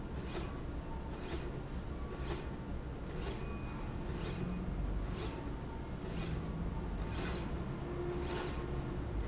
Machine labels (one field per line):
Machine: slide rail